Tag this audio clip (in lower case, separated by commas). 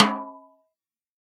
musical instrument, drum, music, percussion, snare drum